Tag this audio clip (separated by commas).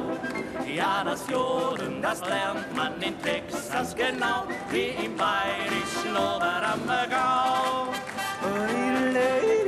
yodelling